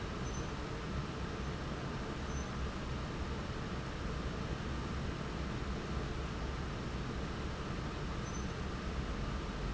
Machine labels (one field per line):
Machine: fan